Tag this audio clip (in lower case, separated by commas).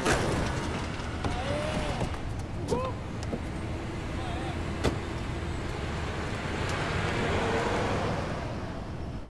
speech